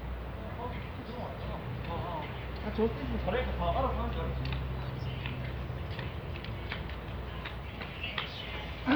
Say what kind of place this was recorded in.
residential area